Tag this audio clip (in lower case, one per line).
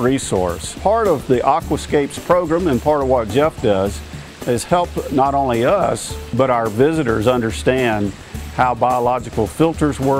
water